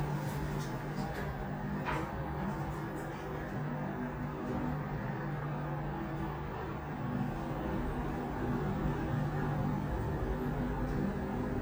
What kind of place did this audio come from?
elevator